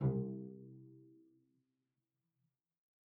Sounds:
Music, Musical instrument, Bowed string instrument

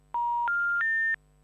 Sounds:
Telephone, Alarm

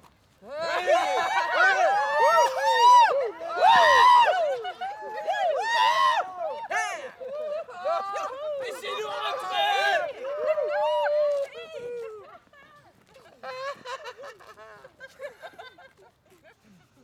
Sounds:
Cheering, Human group actions

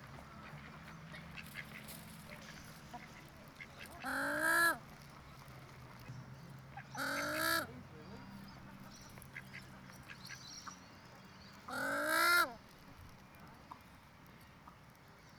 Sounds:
Fowl, livestock, Animal

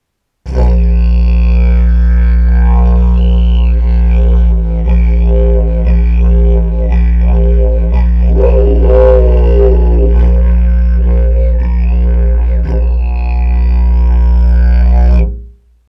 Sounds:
Musical instrument, Music

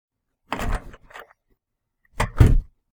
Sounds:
Door, Motor vehicle (road), Domestic sounds, Vehicle, Car

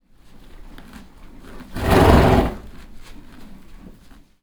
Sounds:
Animal, livestock

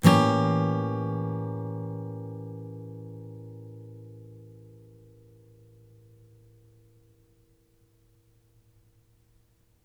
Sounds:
Strum, Plucked string instrument, Musical instrument, Guitar, Acoustic guitar, Music

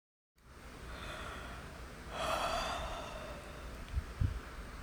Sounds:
Human voice

